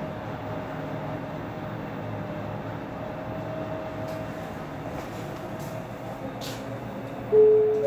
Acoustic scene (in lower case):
elevator